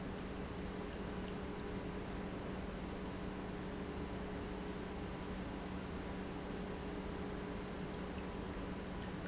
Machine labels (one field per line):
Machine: pump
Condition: normal